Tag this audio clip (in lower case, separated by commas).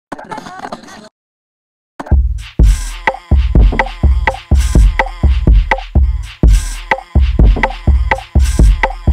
music